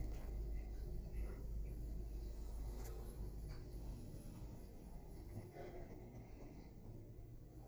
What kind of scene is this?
elevator